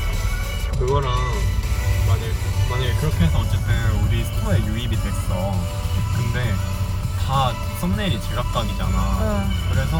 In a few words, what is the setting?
car